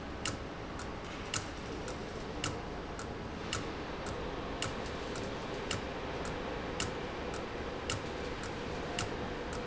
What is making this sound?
valve